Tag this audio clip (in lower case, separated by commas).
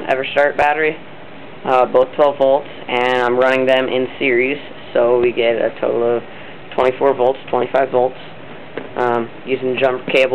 speech